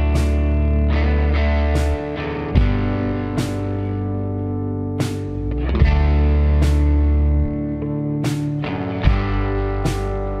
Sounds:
distortion
music

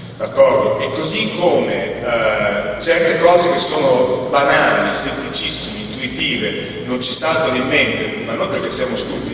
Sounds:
speech

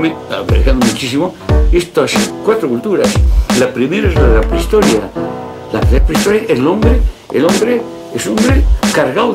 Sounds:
speech
music

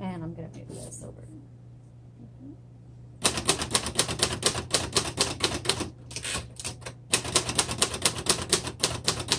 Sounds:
typing on typewriter

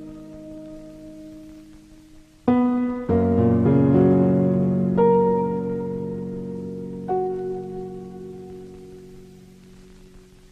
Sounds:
music

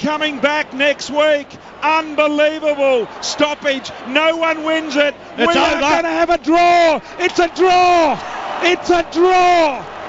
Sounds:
speech

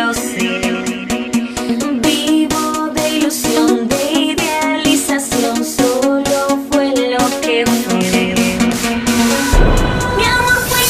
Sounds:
music

